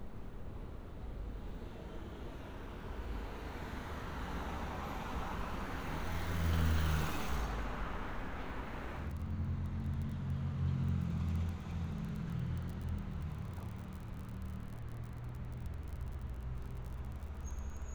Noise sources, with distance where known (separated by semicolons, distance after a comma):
medium-sounding engine